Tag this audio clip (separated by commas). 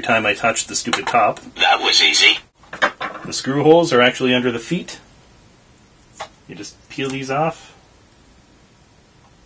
Speech